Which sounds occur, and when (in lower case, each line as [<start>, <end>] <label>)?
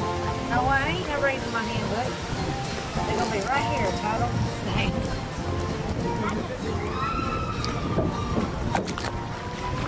[0.00, 9.85] music
[0.00, 9.85] slosh
[2.95, 4.36] female speech
[3.15, 4.09] surface contact
[6.75, 8.40] shout
[7.60, 7.72] tick
[7.91, 9.85] wind noise (microphone)
[8.71, 9.09] generic impact sounds